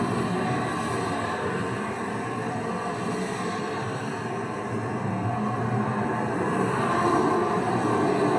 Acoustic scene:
street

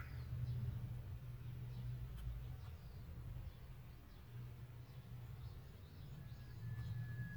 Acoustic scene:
park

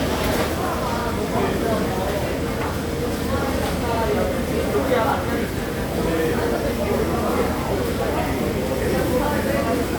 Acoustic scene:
restaurant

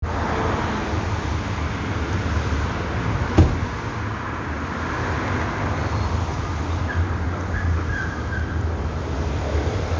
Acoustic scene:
street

